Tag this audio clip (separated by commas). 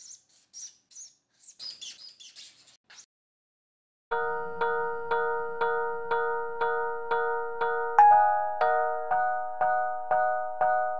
Bird, Bird vocalization